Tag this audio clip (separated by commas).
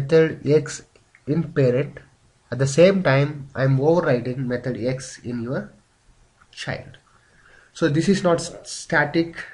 Speech